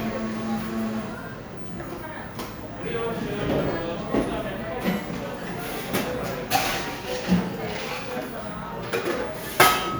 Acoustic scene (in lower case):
cafe